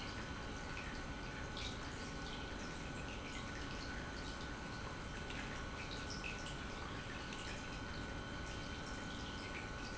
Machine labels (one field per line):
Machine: pump